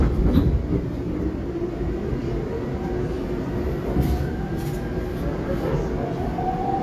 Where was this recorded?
on a subway train